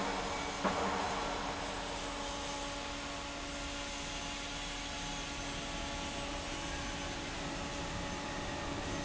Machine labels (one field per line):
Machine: fan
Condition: normal